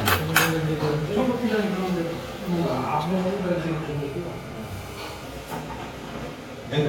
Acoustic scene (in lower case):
restaurant